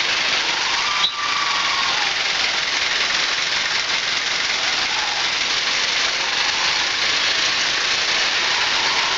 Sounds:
roadway noise, Car, Vehicle

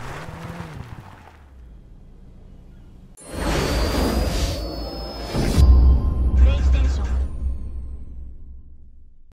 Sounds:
Music, Car

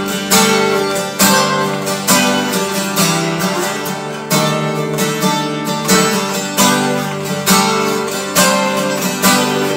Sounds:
Music

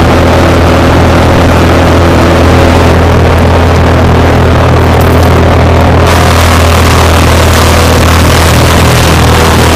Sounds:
Vehicle

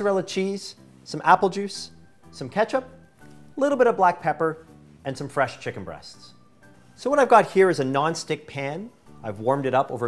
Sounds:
Speech, Music

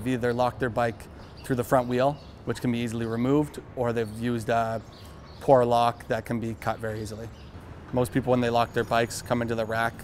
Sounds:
Speech

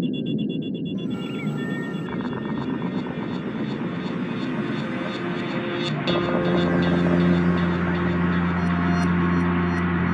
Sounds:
Music

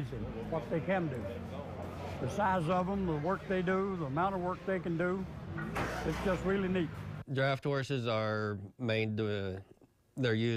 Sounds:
Speech

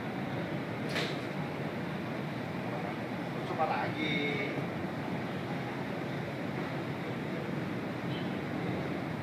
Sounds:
golf driving

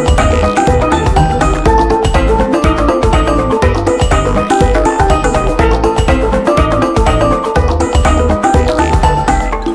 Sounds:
Music

